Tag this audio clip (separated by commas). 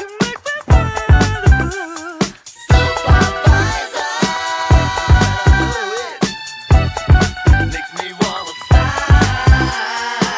Music, Sampler